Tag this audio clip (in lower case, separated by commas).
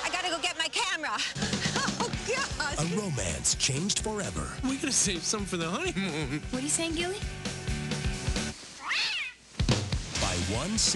speech, music, inside a small room